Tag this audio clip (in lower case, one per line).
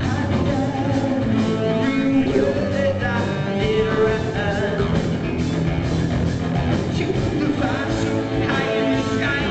music